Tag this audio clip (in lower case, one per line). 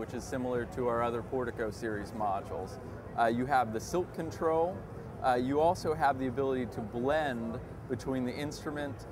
speech